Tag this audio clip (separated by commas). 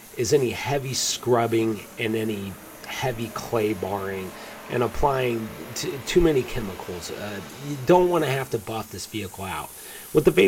Speech